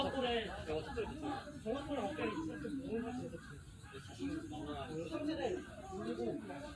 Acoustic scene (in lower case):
park